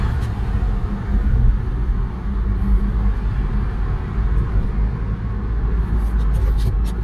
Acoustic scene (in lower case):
car